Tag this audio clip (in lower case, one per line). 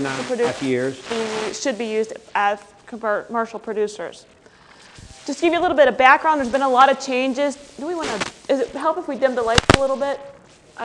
speech